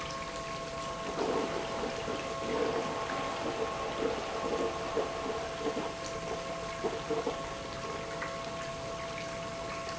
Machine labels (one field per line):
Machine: pump